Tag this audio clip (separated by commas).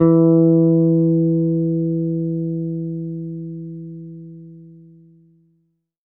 Plucked string instrument, Bass guitar, Guitar, Musical instrument, Music